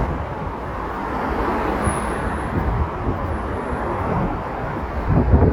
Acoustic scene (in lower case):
street